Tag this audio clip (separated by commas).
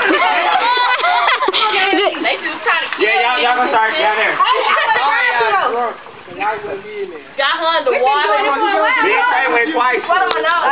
Stream, Speech